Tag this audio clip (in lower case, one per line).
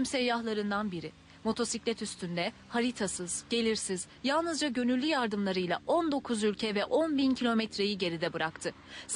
speech